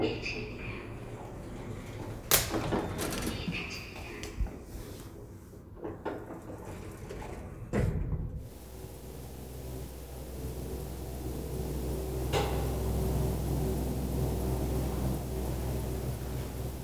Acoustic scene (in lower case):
elevator